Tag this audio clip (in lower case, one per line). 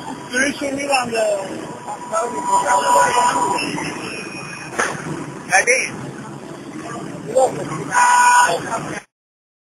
speech